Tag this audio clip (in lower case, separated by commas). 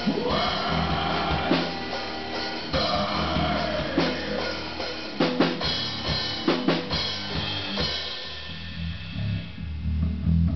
musical instrument, bass drum, music, snare drum, drum, percussion, drum kit, cymbal